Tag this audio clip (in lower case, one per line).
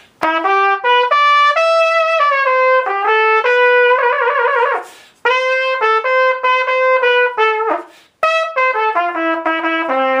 music
musical instrument